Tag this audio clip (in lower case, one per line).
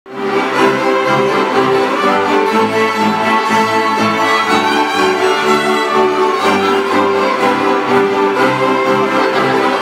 music
fiddle
orchestra
classical music